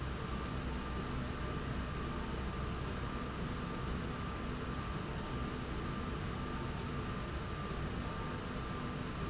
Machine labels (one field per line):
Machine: slide rail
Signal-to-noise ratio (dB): -6 dB